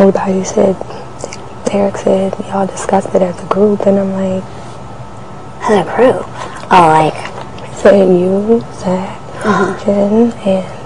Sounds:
inside a large room or hall, Speech

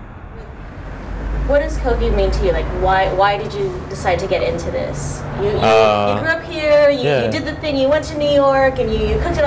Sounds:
Speech, Truck, Vehicle

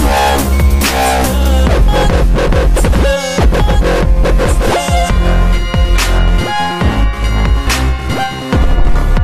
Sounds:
Electronic music, Music, Dubstep

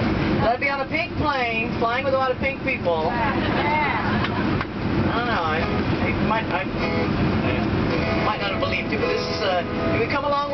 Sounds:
Music, Speech

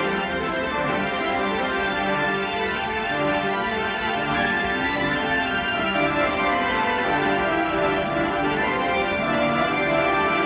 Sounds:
Keyboard (musical), Classical music, Music, Musical instrument, Organ, Piano

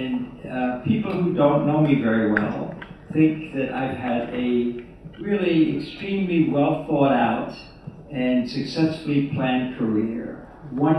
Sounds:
Male speech, Speech

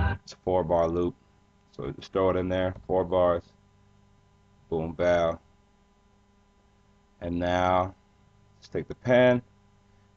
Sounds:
Speech

